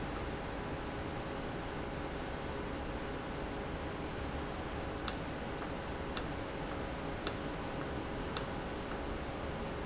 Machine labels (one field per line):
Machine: valve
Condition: normal